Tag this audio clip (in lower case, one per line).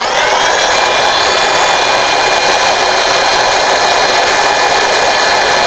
domestic sounds